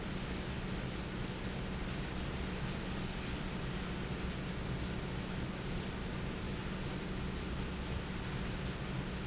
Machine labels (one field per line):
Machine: fan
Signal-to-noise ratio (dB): -6 dB